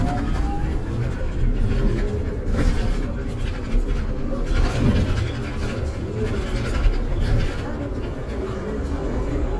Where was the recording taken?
on a bus